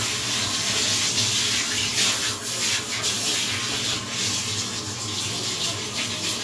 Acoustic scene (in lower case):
restroom